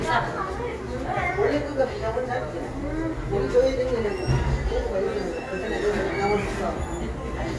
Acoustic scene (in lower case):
cafe